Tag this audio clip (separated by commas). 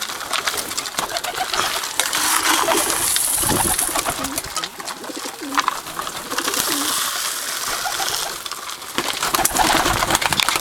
Coo, Bird